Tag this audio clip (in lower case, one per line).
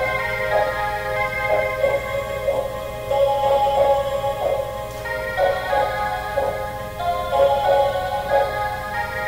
music